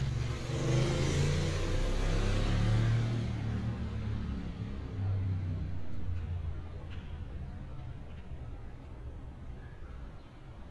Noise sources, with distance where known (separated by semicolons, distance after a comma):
medium-sounding engine, near